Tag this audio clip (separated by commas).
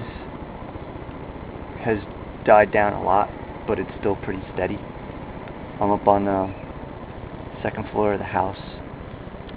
Speech